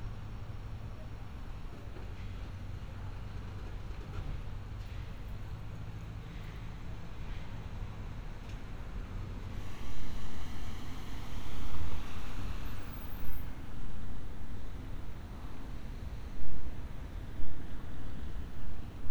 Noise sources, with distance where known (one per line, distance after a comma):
background noise